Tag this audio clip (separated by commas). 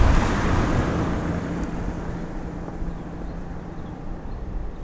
Vehicle, Motor vehicle (road), Car, Car passing by